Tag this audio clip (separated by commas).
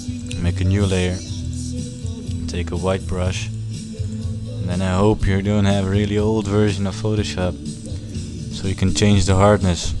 Music, Speech